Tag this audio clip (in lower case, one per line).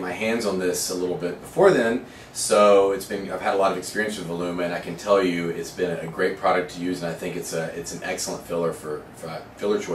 speech